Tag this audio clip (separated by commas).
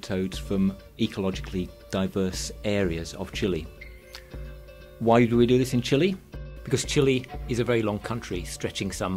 Speech, Music